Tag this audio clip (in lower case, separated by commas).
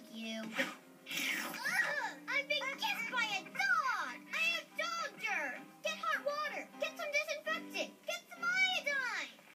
speech, music